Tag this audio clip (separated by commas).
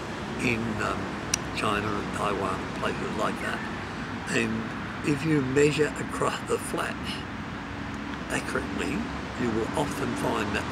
Speech